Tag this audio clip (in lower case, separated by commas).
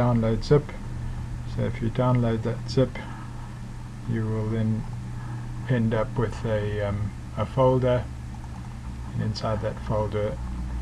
speech